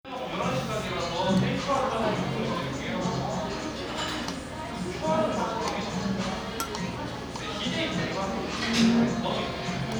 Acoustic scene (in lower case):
cafe